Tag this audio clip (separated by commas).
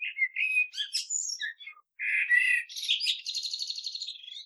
Wild animals, Bird, Animal